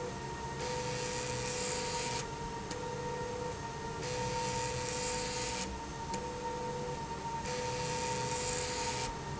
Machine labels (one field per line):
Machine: slide rail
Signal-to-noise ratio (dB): -6 dB